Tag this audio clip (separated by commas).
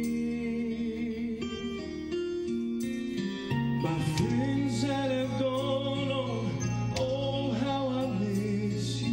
Music